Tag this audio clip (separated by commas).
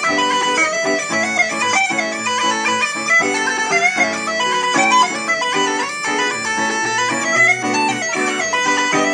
Wind instrument, playing bagpipes, Bagpipes